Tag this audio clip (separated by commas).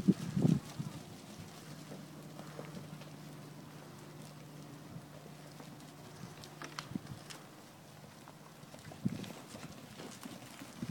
Animal